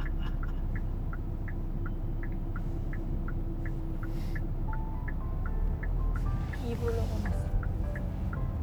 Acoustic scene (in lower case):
car